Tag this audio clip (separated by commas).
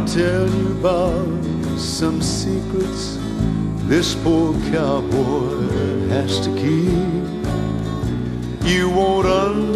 Music